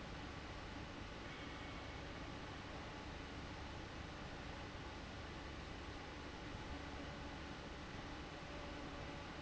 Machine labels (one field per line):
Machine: fan